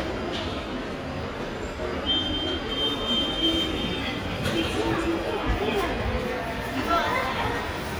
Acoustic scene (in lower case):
subway station